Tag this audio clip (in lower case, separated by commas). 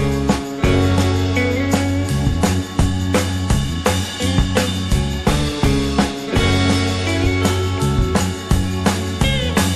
music